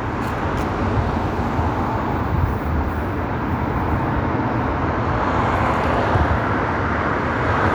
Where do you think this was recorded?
on a street